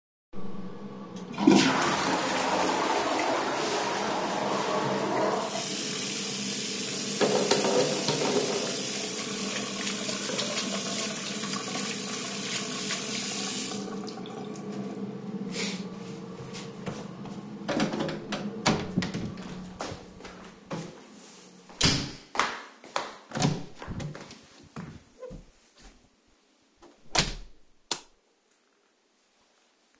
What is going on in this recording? I flush the toilet and run the tap water. I press the soap bottle and wash my hands, then stop the water. I unlock and open the door, close it, walk, open and close the door again, and press the light switch.